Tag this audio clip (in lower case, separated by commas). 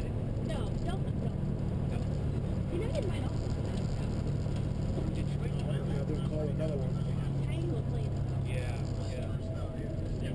speech, vehicle